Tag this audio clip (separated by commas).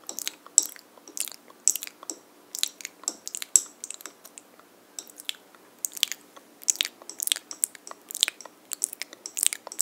lip smacking